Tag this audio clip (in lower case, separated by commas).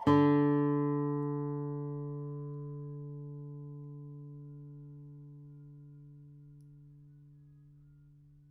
plucked string instrument, musical instrument, guitar, music